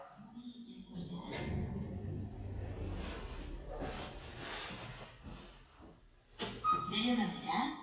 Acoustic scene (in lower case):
elevator